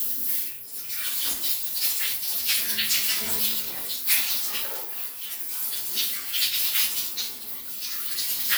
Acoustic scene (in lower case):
restroom